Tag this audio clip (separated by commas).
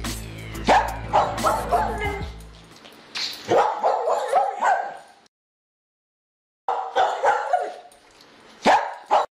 Dog, Bow-wow, Bark